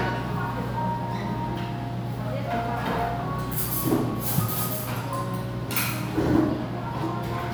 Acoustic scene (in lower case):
crowded indoor space